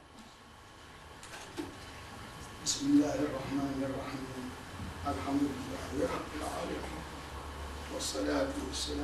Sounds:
Speech, Male speech

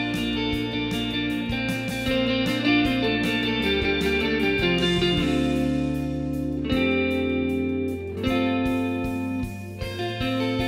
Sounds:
Musical instrument, Guitar, Plucked string instrument, Music

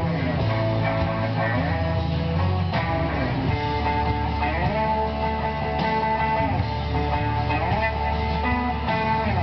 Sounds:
Plucked string instrument, Music, Acoustic guitar, Guitar, Strum, Electric guitar, Musical instrument

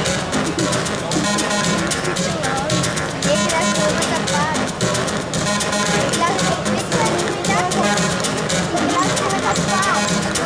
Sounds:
Music, Speech

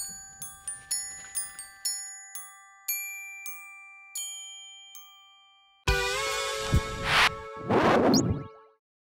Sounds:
Music

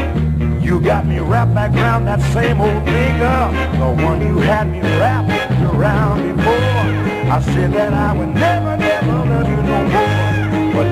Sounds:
Musical instrument, Guitar, Music, Electric guitar, Plucked string instrument

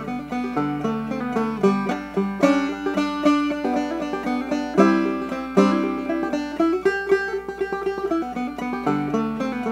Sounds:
Pizzicato

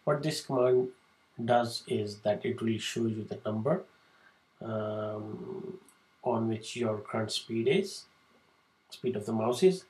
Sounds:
Speech

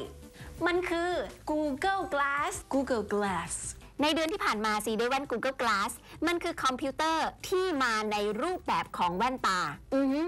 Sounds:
Speech

